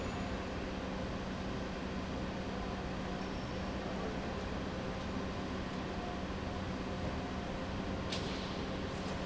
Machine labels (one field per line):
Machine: pump